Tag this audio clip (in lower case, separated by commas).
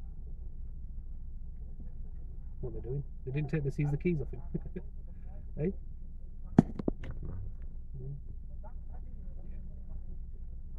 speech